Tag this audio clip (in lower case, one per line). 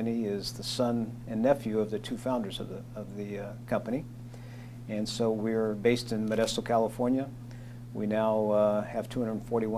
speech